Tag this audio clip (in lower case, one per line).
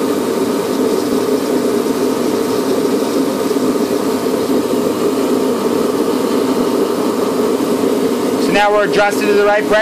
inside a small room
speech